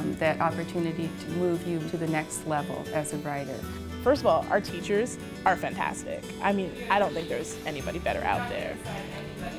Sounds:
speech, music

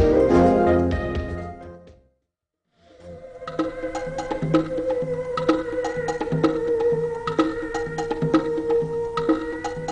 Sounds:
music

